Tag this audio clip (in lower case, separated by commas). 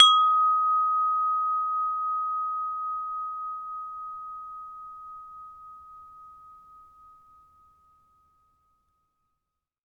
bell, wind chime, chime